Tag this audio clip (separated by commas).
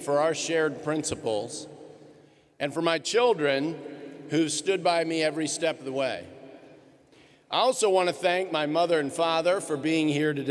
Speech, man speaking, Narration